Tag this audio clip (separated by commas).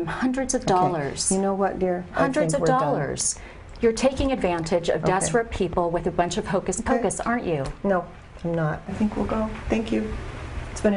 inside a small room, Speech